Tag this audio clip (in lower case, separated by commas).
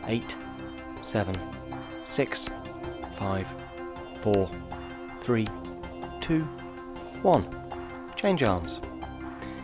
music, speech